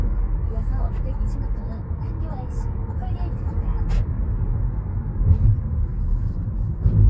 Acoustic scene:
car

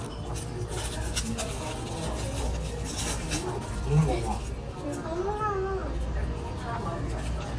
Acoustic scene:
restaurant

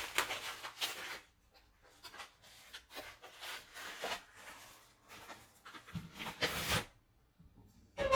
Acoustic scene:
kitchen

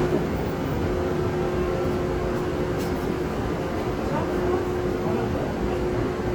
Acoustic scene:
subway train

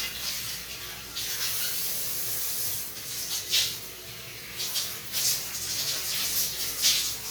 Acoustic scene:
restroom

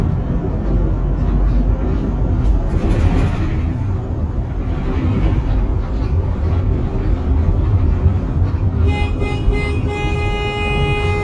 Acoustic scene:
bus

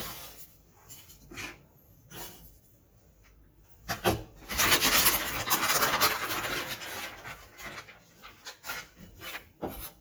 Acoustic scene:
kitchen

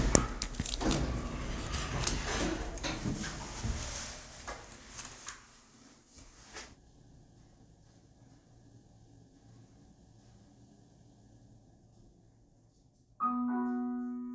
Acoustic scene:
elevator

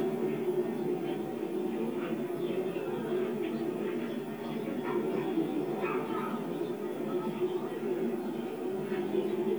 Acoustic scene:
park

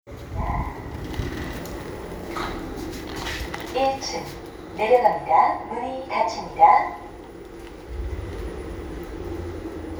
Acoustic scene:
elevator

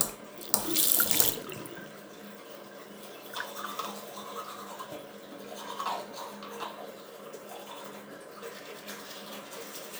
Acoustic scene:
restroom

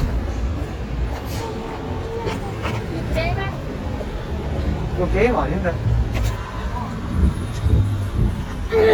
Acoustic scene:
street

